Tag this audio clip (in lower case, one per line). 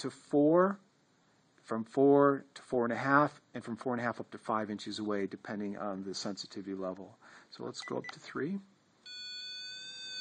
inside a small room
speech